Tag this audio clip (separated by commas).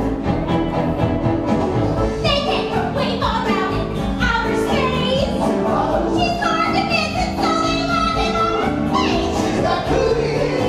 Music